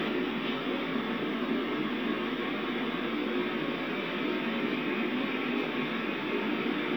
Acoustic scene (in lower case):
subway train